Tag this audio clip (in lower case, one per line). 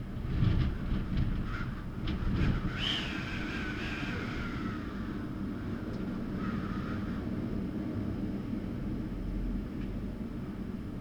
wind